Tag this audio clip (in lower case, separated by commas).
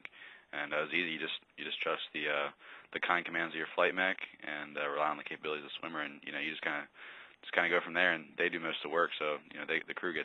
speech